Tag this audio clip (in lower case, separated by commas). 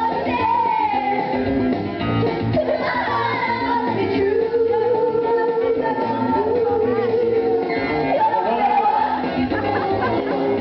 music, female singing